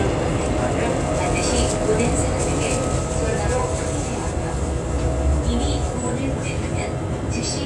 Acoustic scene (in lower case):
subway train